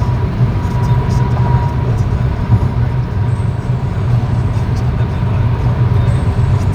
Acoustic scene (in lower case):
car